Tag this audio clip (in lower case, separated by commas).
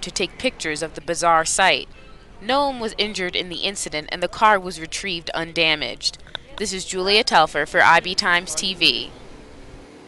vehicle, speech